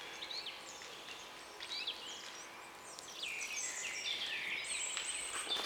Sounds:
Bird, Animal, Wild animals

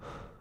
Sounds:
Respiratory sounds, Breathing

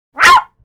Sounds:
Bark, Domestic animals, Dog, Animal

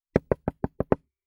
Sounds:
Wood, Knock, home sounds, Door

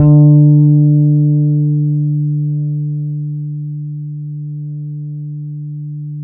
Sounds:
Musical instrument, Guitar, Music, Bass guitar, Plucked string instrument

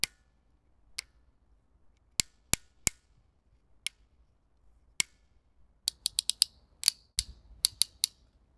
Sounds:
Bicycle, Mechanisms, Vehicle, Tick

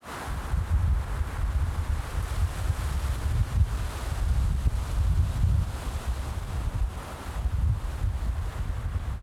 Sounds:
Wind

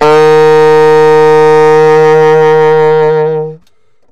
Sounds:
Wind instrument, Musical instrument, Music

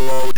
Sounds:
Speech, Human voice

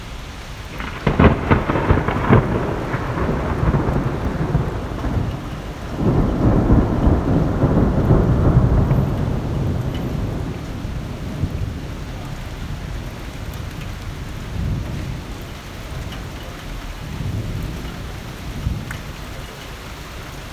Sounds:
Rain, Thunder, Thunderstorm, Water

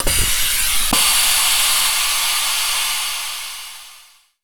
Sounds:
Hiss

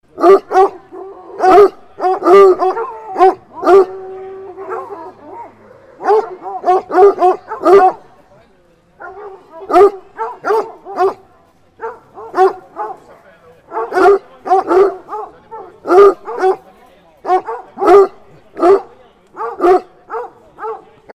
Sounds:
Animal, Dog, Domestic animals

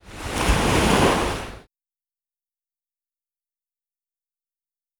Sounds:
Waves, Water, Ocean

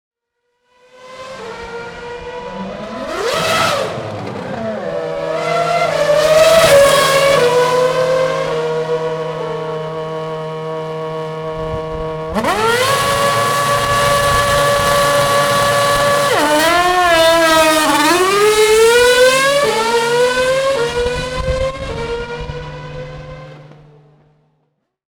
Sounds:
auto racing, Accelerating, Car, Motor vehicle (road), Engine, Vehicle

